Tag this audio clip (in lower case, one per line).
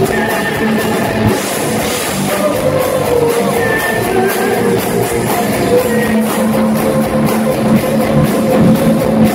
inside a large room or hall
singing
crowd
music